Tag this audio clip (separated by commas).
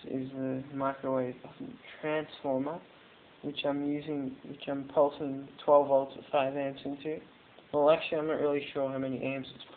Speech